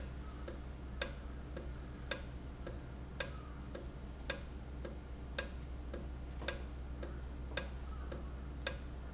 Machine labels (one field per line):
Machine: valve